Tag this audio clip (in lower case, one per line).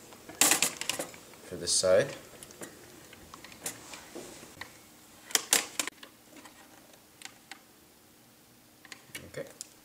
speech